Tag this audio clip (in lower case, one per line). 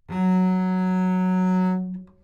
bowed string instrument
musical instrument
music